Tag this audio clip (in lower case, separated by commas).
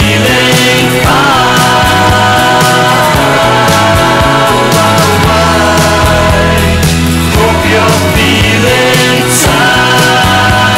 singing